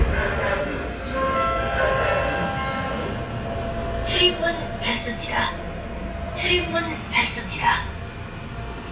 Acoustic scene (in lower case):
subway train